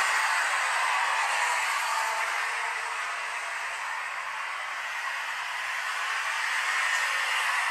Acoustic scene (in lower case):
street